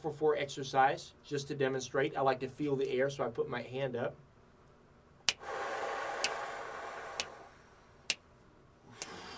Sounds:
Speech

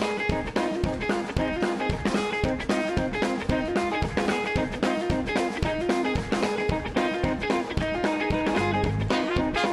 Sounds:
Music

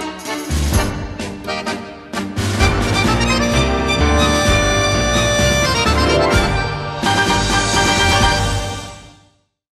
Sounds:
Music

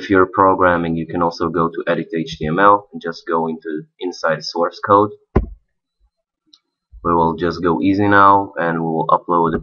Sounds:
Speech

